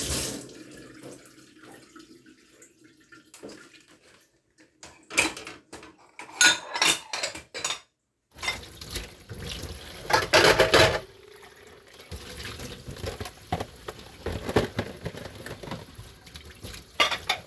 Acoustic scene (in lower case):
kitchen